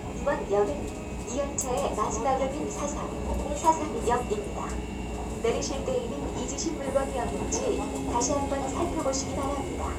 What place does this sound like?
subway train